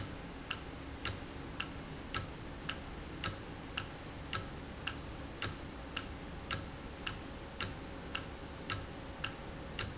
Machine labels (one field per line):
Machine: valve